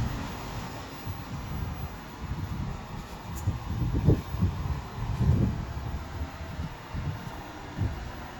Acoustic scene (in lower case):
street